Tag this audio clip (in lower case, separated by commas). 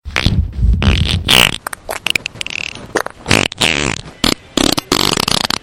fart